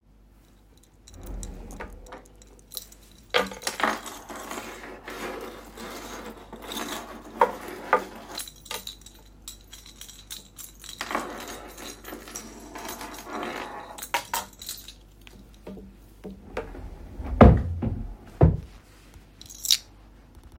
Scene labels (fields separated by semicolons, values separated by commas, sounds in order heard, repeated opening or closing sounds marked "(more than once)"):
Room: bedroom; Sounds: keys, wardrobe or drawer (more than once)